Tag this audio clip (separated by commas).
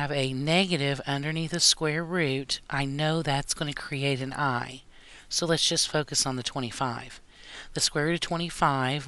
Speech